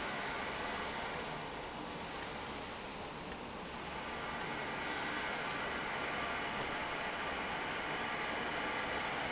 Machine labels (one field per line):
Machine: valve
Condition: abnormal